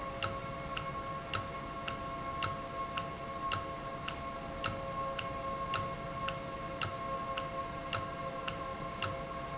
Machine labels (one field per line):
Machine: valve